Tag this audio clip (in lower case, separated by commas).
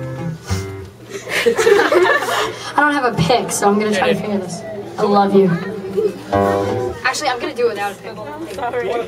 speech, chortle, music